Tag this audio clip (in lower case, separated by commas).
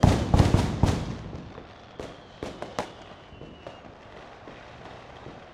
fireworks, fire, explosion